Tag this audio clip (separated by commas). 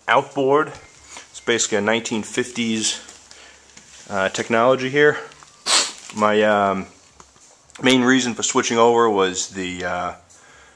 Speech